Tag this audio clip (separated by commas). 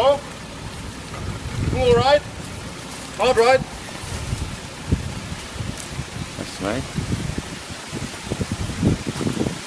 Speech, Vehicle, outside, rural or natural, Car